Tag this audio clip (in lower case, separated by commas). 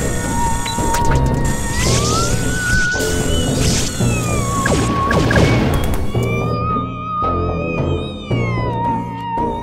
music